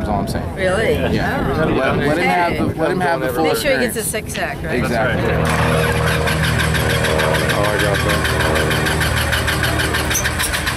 The wind is blowing, adult males and females are speaking, an engine is started, aircraft humming occurs, and an emergency siren blows very briefly